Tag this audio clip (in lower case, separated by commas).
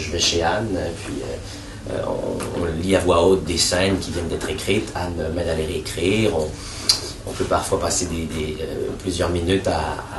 speech